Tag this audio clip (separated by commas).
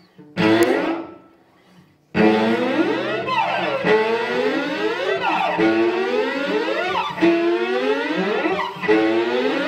Music, Musical instrument, Bowed string instrument, inside a large room or hall